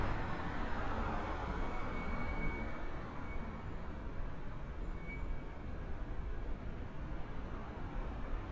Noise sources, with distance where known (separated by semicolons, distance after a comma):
engine of unclear size